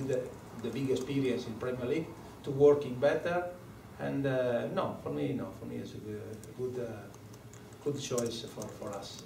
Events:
0.0s-9.2s: background noise
7.0s-9.2s: typing
7.8s-9.2s: man speaking

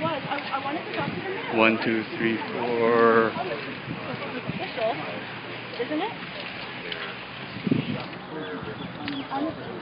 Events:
0.0s-1.4s: female speech
0.0s-9.6s: conversation
0.0s-9.8s: background noise
0.3s-0.5s: generic impact sounds
0.9s-1.0s: generic impact sounds
1.4s-2.4s: male speech
2.4s-2.5s: generic impact sounds
2.5s-3.3s: male speech
3.3s-3.7s: female speech
3.9s-5.0s: female speech
4.0s-4.2s: generic impact sounds
5.7s-6.2s: female speech
5.7s-5.8s: generic impact sounds
6.3s-6.5s: generic impact sounds
6.8s-7.2s: male speech
6.9s-7.1s: generic impact sounds
7.5s-8.0s: wind noise (microphone)
8.0s-8.2s: generic impact sounds
8.3s-9.5s: male speech
8.3s-8.5s: bird call
8.6s-9.0s: wind noise (microphone)
8.7s-8.9s: bird call
9.0s-9.2s: generic impact sounds
9.1s-9.3s: bird call
9.2s-9.6s: female speech

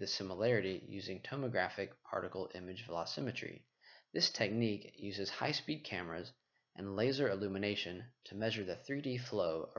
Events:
0.0s-3.5s: man speaking
0.0s-9.7s: background noise
3.8s-4.1s: breathing
4.1s-6.3s: man speaking
6.5s-6.7s: breathing
6.7s-8.0s: man speaking
8.2s-9.7s: man speaking

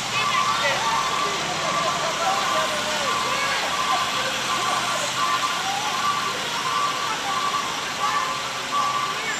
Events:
0.0s-9.3s: motor vehicle (road)
0.0s-9.3s: wind
0.0s-0.7s: woman speaking
0.0s-9.3s: conversation
0.1s-0.6s: reversing beeps
0.8s-1.3s: reversing beeps
1.1s-2.6s: male speech
1.6s-1.9s: reversing beeps
2.2s-2.7s: reversing beeps
3.0s-3.5s: reversing beeps
3.2s-3.6s: woman speaking
3.7s-4.1s: reversing beeps
3.9s-4.4s: woman speaking
4.1s-5.3s: male speech
4.4s-4.9s: reversing beeps
5.1s-5.5s: reversing beeps
5.5s-5.9s: woman speaking
5.9s-6.2s: reversing beeps
6.3s-9.3s: woman speaking
6.5s-7.0s: reversing beeps
7.3s-7.6s: reversing beeps
7.9s-8.4s: reversing beeps
8.6s-9.1s: reversing beeps
9.2s-9.3s: male speech

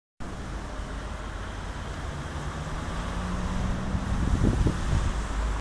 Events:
0.2s-5.4s: roadway noise
0.2s-5.4s: wind
3.9s-4.7s: wind noise (microphone)

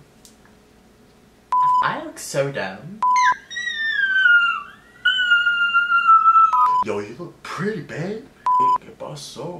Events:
0.0s-9.5s: mechanisms
0.2s-0.4s: generic impact sounds
1.5s-1.8s: beep
1.8s-3.0s: man speaking
3.0s-3.3s: beep
3.1s-4.7s: yip
5.0s-6.8s: yip
6.5s-6.8s: beep
6.8s-8.2s: man speaking
8.4s-8.8s: beep
8.5s-9.5s: man speaking

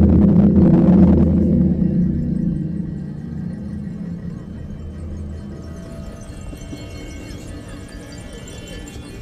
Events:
0.0s-9.2s: music
7.2s-7.9s: human voice

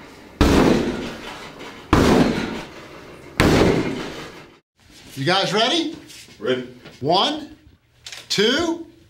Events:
0.0s-4.6s: mechanisms
0.4s-0.9s: thud
1.0s-1.9s: generic impact sounds
1.9s-2.3s: thud
2.5s-3.4s: generic impact sounds
3.4s-3.9s: thud
3.7s-4.6s: generic impact sounds
4.7s-9.0s: mechanisms
5.1s-9.0s: conversation
5.2s-6.1s: man speaking
6.0s-6.3s: generic impact sounds
6.4s-6.8s: man speaking
6.8s-7.0s: generic impact sounds
7.0s-7.6s: man speaking
8.0s-8.3s: generic impact sounds
8.3s-8.8s: man speaking

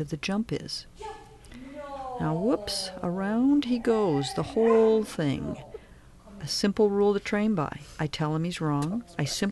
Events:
0.0s-0.8s: woman speaking
0.0s-9.5s: background noise
0.9s-1.3s: woman speaking
1.4s-1.5s: human sounds
1.4s-5.7s: woman speaking
4.6s-4.8s: bark
5.7s-6.3s: breathing
5.7s-5.8s: dog
6.4s-7.7s: woman speaking
7.7s-8.0s: breathing
8.0s-9.5s: woman speaking
9.0s-9.2s: dog

